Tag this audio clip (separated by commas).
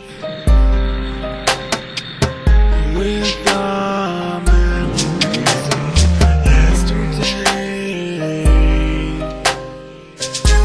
Music